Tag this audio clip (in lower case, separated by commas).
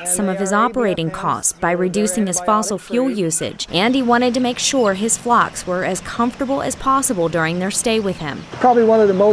bird, speech